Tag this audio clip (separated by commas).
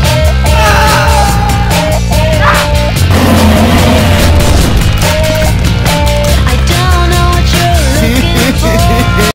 Sound effect, Screaming, Music